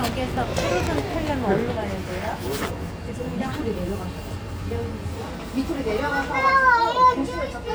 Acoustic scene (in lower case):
subway station